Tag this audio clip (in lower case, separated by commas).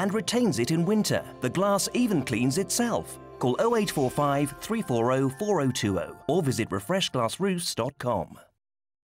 music, speech